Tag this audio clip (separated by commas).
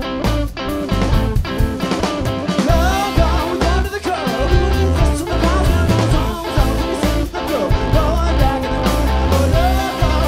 Music, Singing